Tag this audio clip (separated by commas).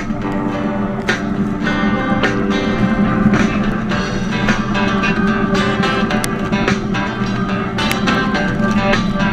Water vehicle